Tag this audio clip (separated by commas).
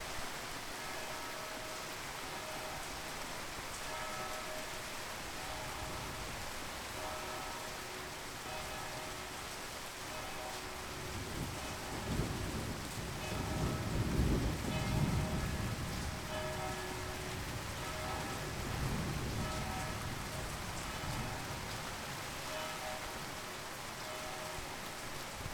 Rain, Water